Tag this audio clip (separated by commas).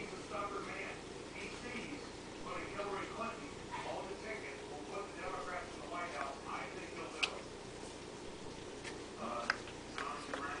Speech